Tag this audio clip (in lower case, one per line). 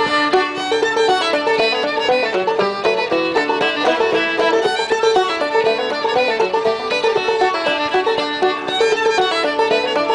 music
musical instrument
violin